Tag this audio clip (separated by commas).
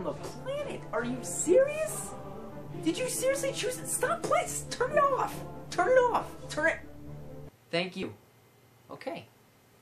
Music, Speech